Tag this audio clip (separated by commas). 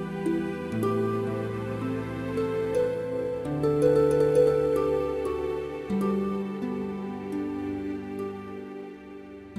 Music